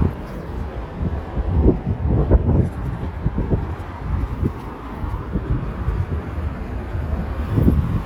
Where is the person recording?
on a street